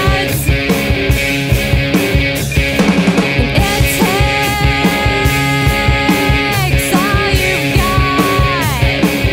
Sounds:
Punk rock, Music

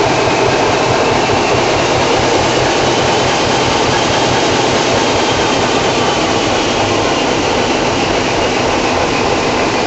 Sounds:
Heavy engine (low frequency)

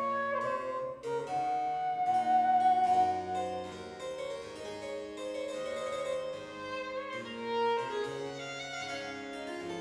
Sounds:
playing harpsichord

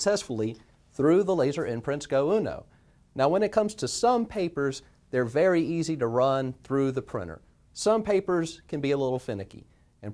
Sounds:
Speech

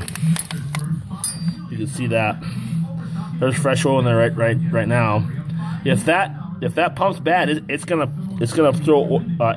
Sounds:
Speech

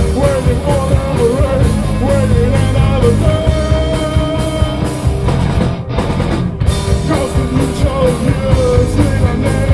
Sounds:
Music

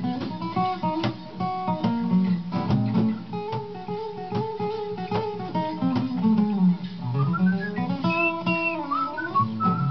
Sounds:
Whistling

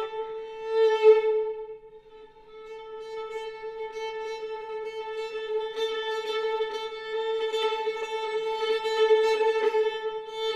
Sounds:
Music, fiddle, Musical instrument

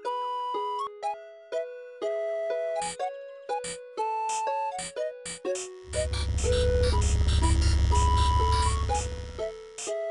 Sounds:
Music

